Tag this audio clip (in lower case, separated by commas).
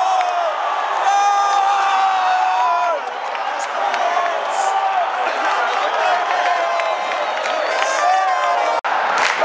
people crowd, crowd, cheering, speech